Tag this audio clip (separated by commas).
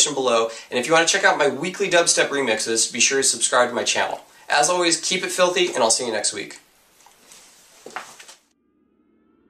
Speech